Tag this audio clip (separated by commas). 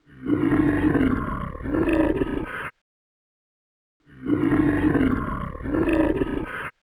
Animal, Wild animals